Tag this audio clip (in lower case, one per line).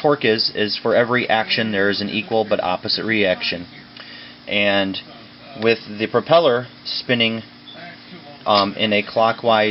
speech